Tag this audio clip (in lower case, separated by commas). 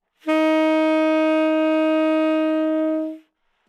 musical instrument, woodwind instrument, music